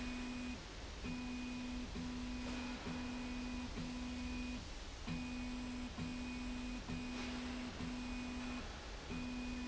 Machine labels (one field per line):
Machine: slide rail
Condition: normal